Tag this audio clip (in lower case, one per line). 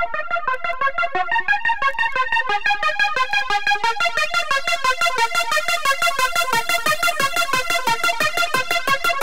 techno
music
electronic music